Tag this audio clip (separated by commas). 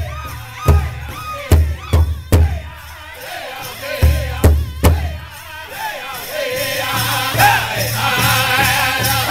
Music